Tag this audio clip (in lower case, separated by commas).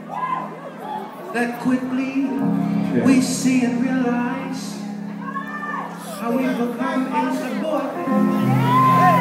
speech, music